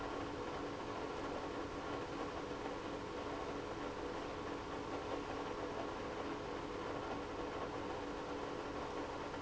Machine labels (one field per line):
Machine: pump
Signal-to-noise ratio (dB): 6 dB